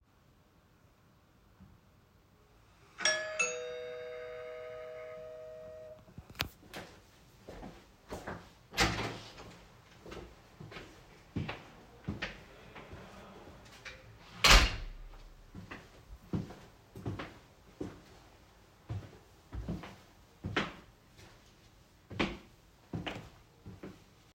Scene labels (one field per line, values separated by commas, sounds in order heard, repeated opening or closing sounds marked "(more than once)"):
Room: kitchen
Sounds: bell ringing, footsteps, door (more than once)